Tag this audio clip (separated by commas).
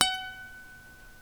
Guitar, Music, Plucked string instrument, Acoustic guitar, Musical instrument